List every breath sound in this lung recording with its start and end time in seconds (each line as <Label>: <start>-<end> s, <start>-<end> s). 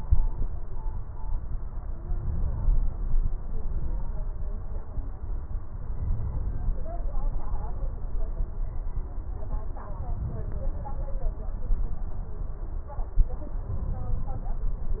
Inhalation: 2.00-3.09 s, 5.94-6.79 s, 13.66-14.51 s